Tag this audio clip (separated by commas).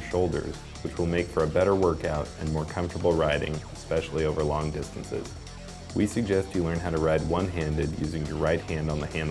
Music, Speech